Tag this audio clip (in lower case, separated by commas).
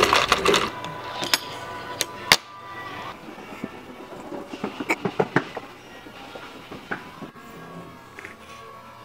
inside a public space, music, speech